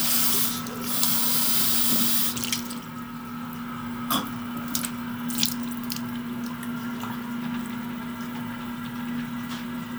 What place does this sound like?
restroom